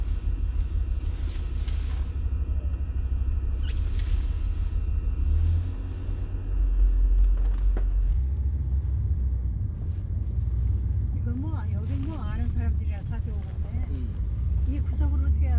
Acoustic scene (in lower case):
car